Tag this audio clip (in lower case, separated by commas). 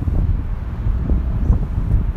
wind